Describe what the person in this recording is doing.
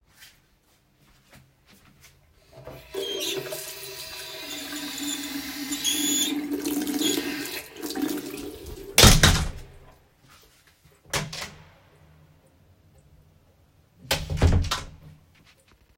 Running water is turned on for a few seconds and then turned off. Shortly after, a door is opened and closed once, creating a clear open-close sequence